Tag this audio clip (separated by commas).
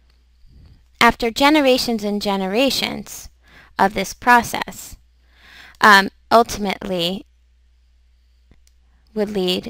Speech